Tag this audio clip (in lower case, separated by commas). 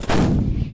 explosion, boom